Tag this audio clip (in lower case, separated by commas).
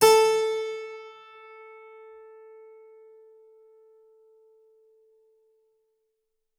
music, musical instrument, keyboard (musical)